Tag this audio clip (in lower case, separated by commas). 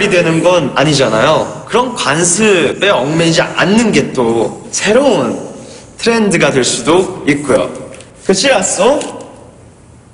speech